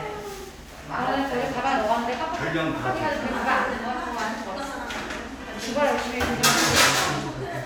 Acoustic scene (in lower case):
crowded indoor space